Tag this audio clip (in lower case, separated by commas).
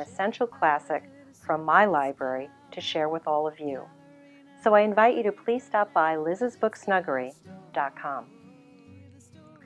speech